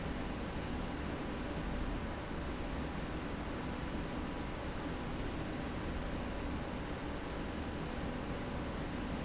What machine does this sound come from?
slide rail